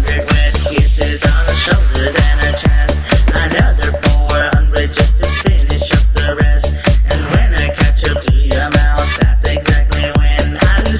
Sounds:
Music, Dance music

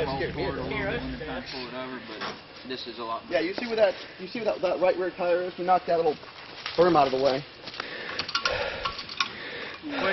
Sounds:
Speech

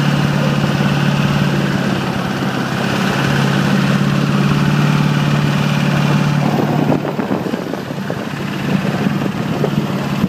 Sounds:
Truck, Vehicle

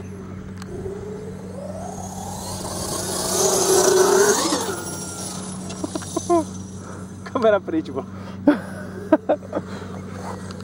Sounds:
Speech

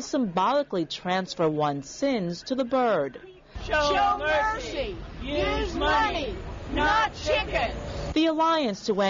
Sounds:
Speech

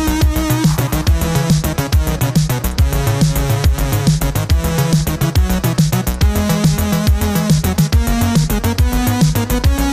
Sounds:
Music

